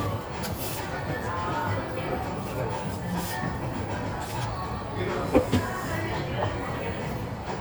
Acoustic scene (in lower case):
cafe